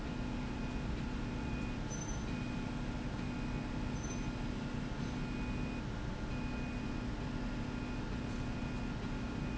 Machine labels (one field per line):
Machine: slide rail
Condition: normal